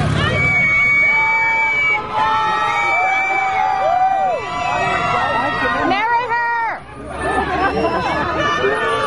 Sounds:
speech babble, outside, urban or man-made, speech

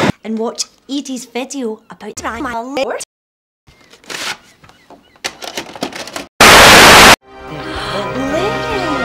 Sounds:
music, speech

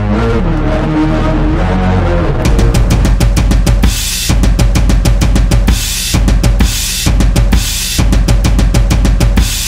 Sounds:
rimshot, drum, drum roll, snare drum, bass drum, percussion, drum kit

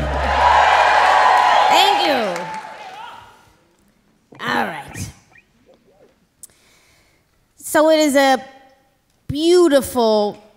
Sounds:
speech

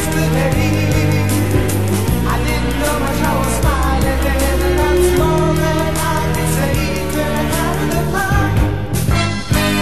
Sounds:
tick, music

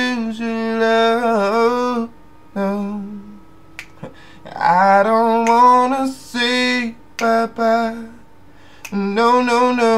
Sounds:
male singing

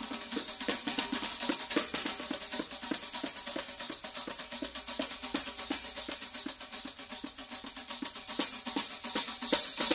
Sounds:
tambourine, music

